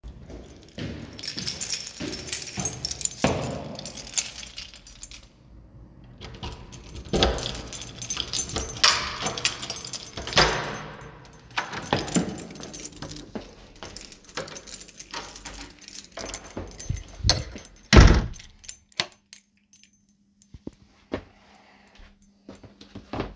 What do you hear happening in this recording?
I walked to the apartment door while holding a keychain. I opened and closed the door and used the light switch. Footsteps are audible during the movement.